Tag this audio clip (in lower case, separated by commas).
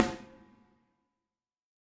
music, snare drum, musical instrument, drum, percussion